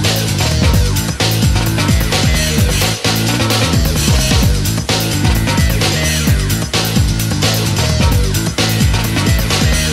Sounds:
video game music
music

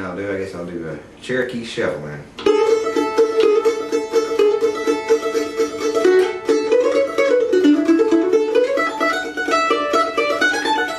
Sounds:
playing mandolin

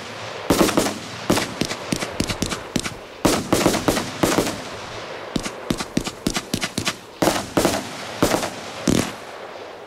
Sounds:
smash

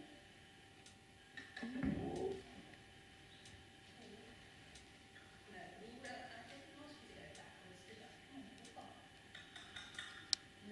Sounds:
speech

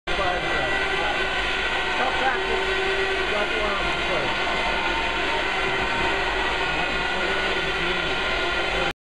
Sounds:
speech

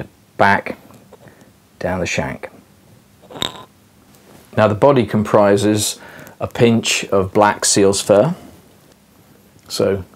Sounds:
speech
inside a small room

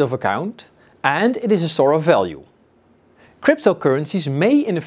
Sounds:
speech

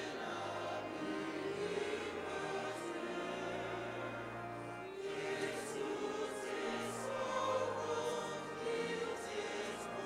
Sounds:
music

